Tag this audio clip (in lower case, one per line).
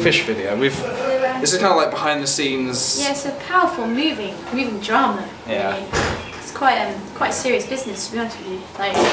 speech
conversation